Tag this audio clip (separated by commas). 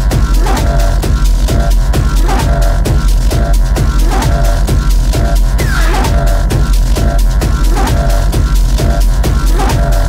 Hum